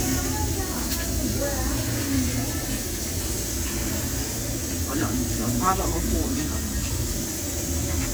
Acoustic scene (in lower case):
restaurant